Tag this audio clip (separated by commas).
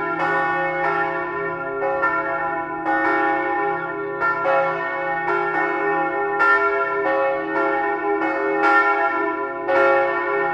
church bell ringing